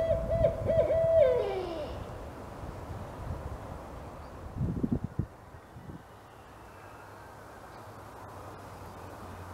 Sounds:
owl hooting

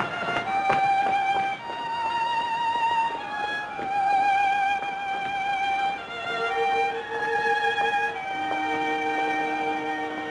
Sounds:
violin, music, musical instrument

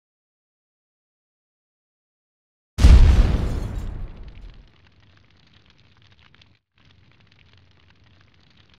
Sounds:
pop, explosion

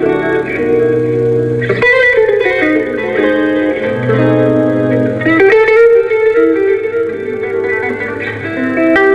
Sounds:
guitar, acoustic guitar, strum, musical instrument, plucked string instrument, electric guitar, music

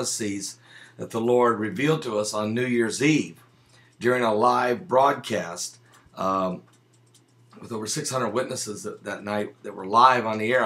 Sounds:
speech

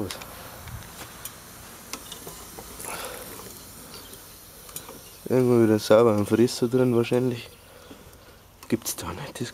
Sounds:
speech

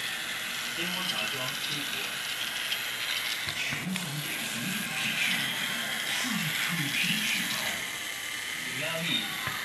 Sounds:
speech

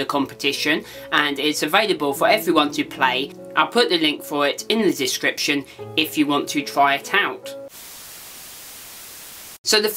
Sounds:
speech, music

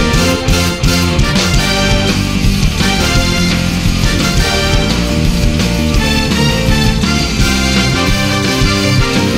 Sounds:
music

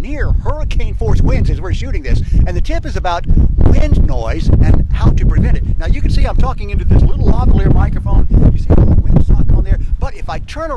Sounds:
wind noise

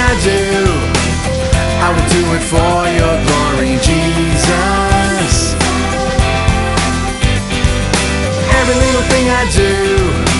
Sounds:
music

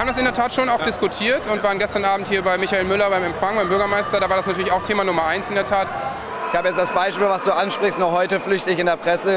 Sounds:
people booing

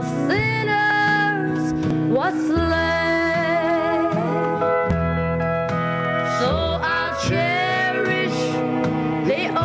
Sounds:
singing, music

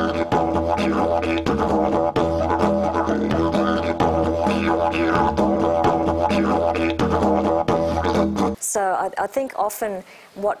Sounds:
music, didgeridoo, speech

